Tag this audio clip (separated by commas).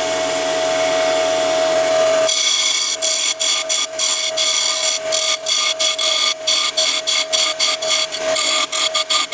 lathe spinning